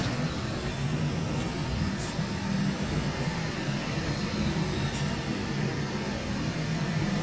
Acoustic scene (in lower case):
residential area